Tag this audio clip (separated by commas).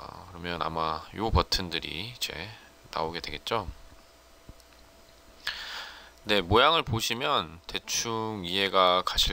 Speech